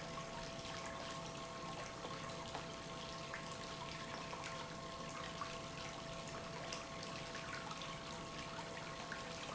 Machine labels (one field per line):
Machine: pump